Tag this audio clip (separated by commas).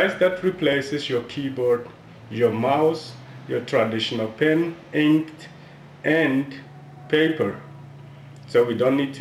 Speech